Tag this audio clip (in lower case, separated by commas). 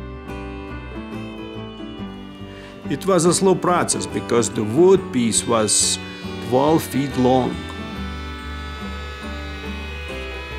planing timber